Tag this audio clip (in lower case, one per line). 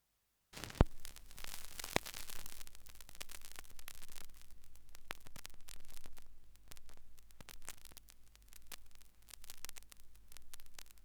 crackle